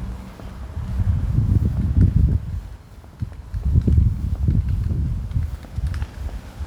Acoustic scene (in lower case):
residential area